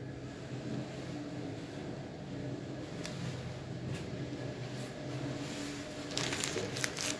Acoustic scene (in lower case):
elevator